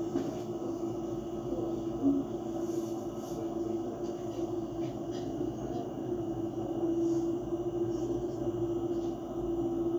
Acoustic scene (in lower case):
bus